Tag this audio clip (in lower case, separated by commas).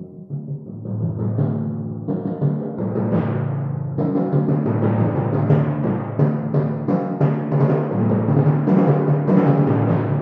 playing timpani